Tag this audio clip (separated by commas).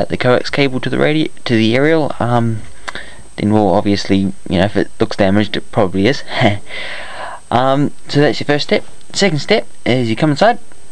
Speech